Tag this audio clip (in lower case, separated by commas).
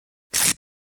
packing tape, home sounds